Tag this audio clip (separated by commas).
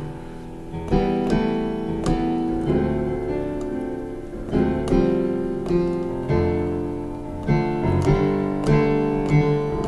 Keyboard (musical), Piano